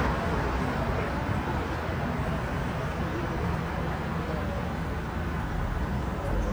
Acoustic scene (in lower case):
street